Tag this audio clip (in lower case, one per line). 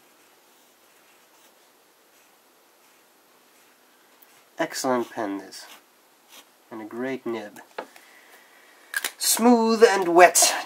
inside a small room
speech